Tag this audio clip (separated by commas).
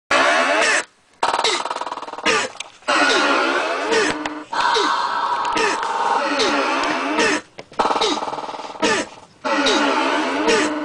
Musical instrument, Music, Electronic music